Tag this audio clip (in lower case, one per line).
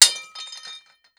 glass